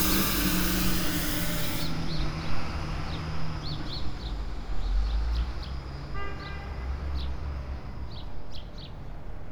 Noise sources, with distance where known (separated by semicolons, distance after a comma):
large-sounding engine; car horn, near